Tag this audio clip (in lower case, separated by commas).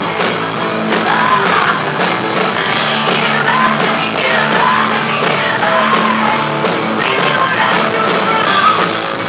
music, rock and roll